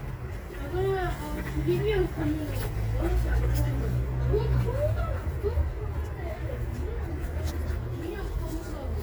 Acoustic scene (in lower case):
residential area